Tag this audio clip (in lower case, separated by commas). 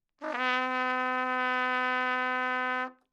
brass instrument, trumpet, music, musical instrument